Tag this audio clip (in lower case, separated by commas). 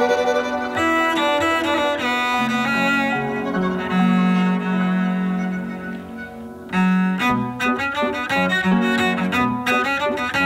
music, bowed string instrument, musical instrument